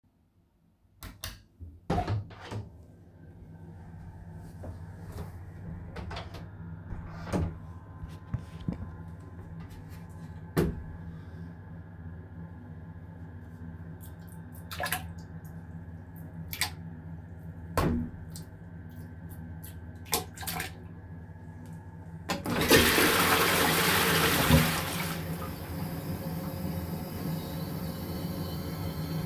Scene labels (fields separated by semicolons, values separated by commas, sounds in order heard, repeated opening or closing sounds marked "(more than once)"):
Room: bathroom; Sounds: light switch, door (more than once), toilet flushing